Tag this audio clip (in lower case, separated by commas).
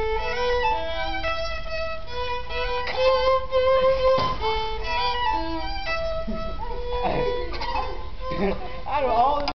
violin, musical instrument, speech, music